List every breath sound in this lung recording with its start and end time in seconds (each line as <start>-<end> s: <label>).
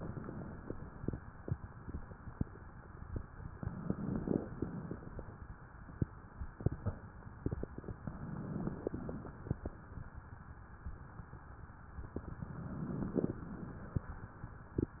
3.66-4.55 s: inhalation
3.66-4.55 s: crackles
8.14-9.17 s: inhalation
8.14-9.17 s: crackles
12.45-13.47 s: inhalation
12.45-13.47 s: crackles